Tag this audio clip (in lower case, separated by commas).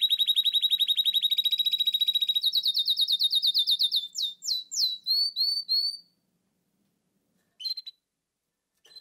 bird chirping